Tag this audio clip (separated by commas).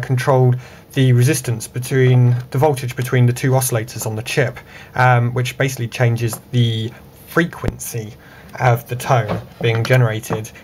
Speech